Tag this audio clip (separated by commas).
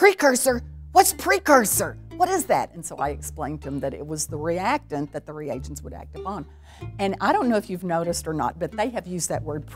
Music, Speech